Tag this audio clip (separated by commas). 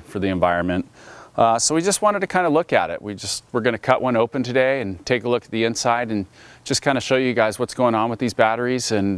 Speech